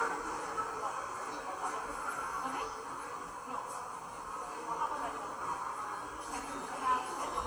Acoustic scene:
subway station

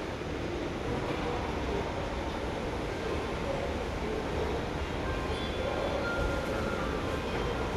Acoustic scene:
subway station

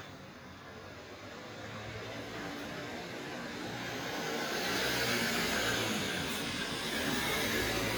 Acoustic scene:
residential area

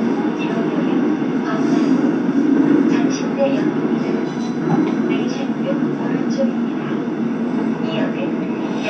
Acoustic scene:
subway train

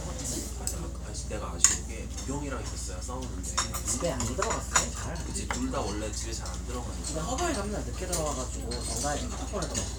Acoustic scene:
restaurant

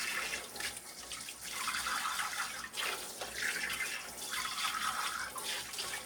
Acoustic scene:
kitchen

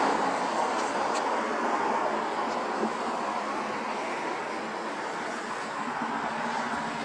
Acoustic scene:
street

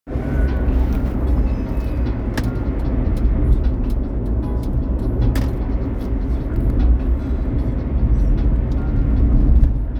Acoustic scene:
car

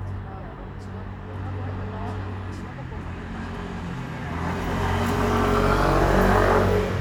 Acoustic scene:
residential area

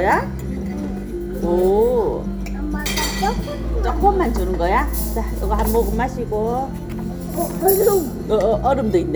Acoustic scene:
restaurant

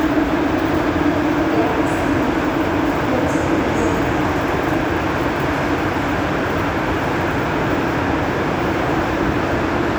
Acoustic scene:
subway station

